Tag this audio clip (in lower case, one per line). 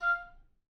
woodwind instrument
music
musical instrument